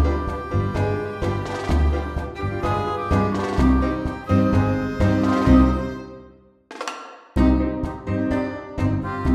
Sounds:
music

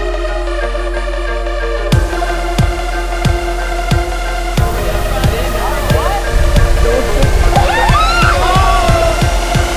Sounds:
speech, music

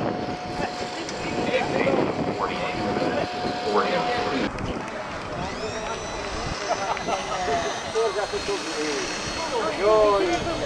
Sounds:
outside, urban or man-made, speech

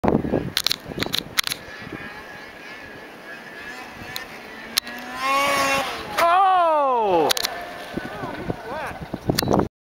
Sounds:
speech

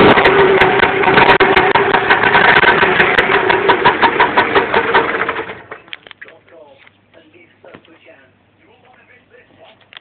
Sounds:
speech, engine

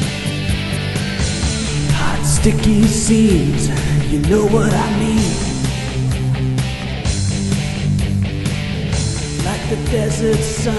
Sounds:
music

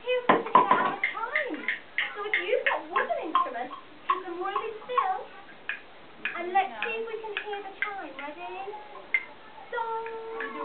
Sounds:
speech

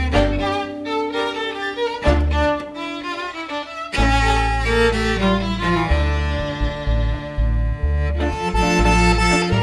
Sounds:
blues, music

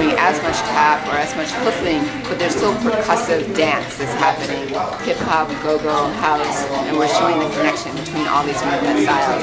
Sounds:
tap, music, speech

